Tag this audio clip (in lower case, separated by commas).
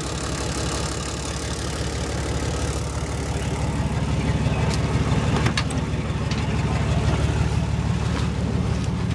vehicle